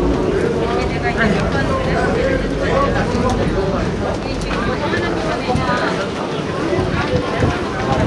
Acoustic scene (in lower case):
subway station